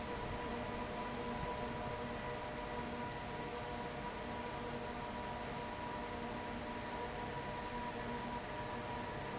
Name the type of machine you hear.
fan